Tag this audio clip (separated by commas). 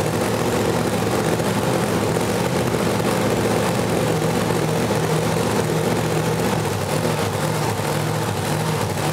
Engine, Vehicle, inside a large room or hall